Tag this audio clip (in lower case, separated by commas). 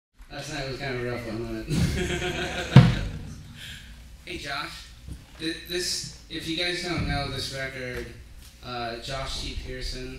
male speech